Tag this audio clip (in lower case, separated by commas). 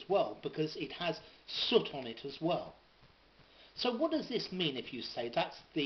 speech